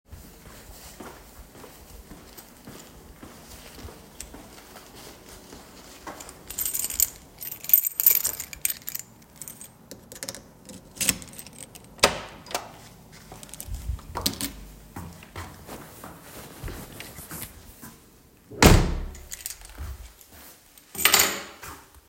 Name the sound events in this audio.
footsteps, keys, door